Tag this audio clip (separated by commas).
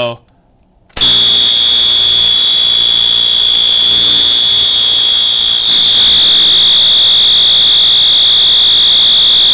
Fire alarm, Speech